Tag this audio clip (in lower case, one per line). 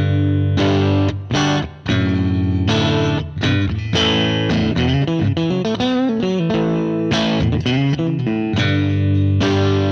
electric guitar
music
plucked string instrument
distortion
musical instrument
guitar
bass guitar